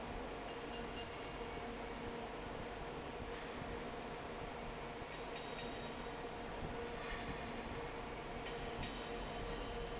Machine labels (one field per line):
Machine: fan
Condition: normal